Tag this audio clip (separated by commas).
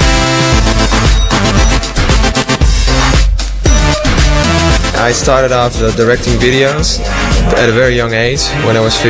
Music, Speech